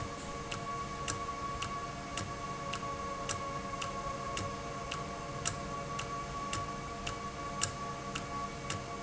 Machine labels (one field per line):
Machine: valve